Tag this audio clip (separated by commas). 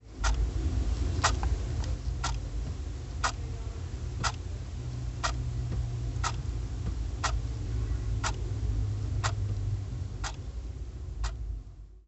Clock, Mechanisms